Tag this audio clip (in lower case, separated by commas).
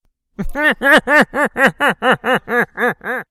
human voice, laughter